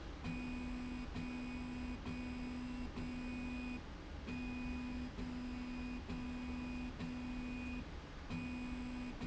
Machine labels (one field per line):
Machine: slide rail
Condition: normal